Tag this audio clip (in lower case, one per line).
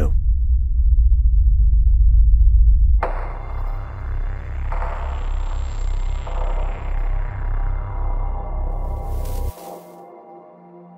speech